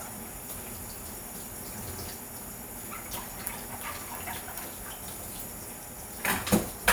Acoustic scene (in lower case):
kitchen